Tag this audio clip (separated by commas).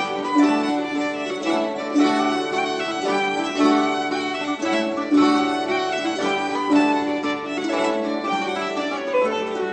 Pizzicato, Harp